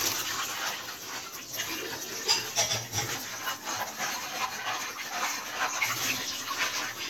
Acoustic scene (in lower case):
kitchen